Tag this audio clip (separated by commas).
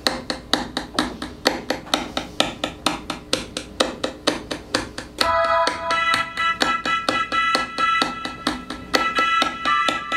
Music